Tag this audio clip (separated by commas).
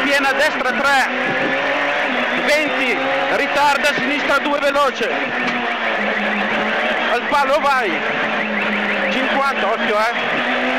Vehicle, Car, Motor vehicle (road), Speech